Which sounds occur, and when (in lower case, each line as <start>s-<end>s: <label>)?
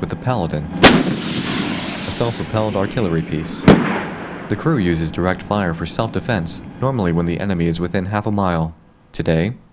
0.0s-0.8s: man speaking
0.0s-9.7s: background noise
0.8s-4.5s: artillery fire
2.1s-3.8s: man speaking
4.5s-6.6s: man speaking
6.8s-8.7s: man speaking
9.1s-9.5s: man speaking